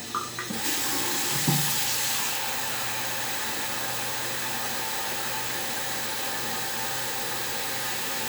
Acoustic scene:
restroom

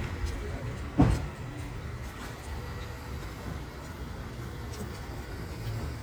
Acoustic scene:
residential area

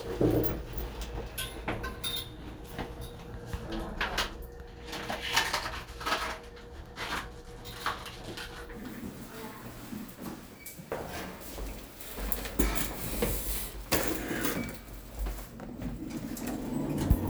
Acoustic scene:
elevator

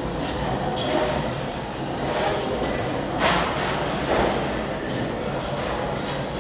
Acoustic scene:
restaurant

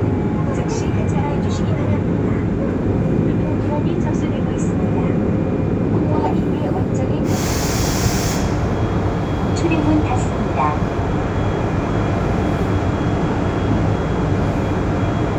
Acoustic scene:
subway train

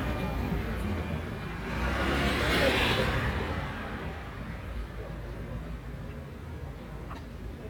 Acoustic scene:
residential area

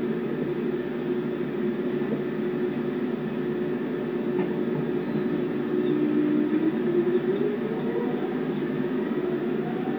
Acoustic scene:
subway train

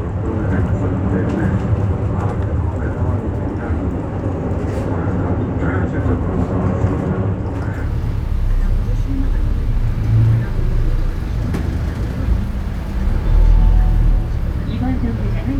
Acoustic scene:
bus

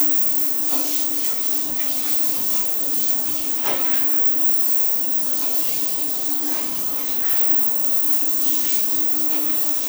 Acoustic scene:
restroom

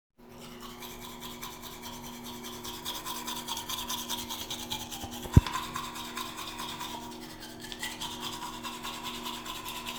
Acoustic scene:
restroom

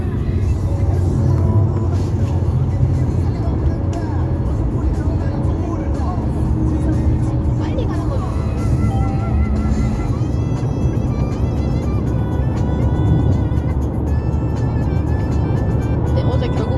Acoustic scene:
car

